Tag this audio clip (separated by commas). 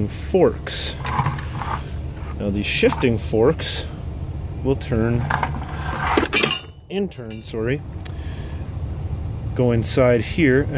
Speech